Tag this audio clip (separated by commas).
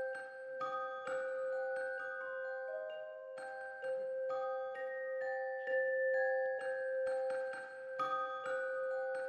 inside a small room, Glockenspiel, Music